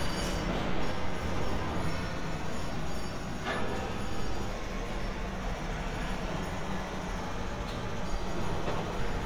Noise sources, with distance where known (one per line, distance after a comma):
jackhammer, near